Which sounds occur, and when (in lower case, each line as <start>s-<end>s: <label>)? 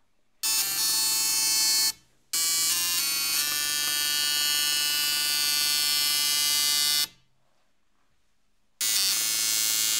0.0s-0.4s: background noise
0.4s-2.1s: printer
1.9s-2.3s: background noise
2.3s-7.2s: printer
7.0s-8.8s: background noise
7.4s-7.7s: surface contact
7.9s-8.1s: surface contact
8.8s-9.9s: printer